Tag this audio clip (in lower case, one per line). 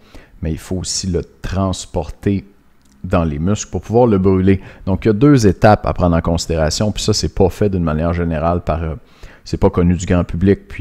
speech